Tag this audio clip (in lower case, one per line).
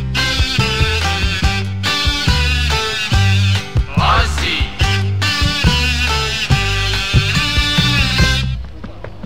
music
psychedelic rock
rock music